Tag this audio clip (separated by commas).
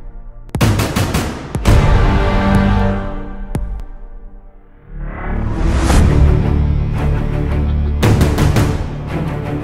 Theme music